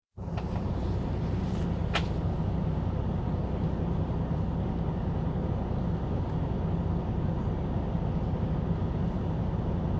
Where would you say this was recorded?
on a bus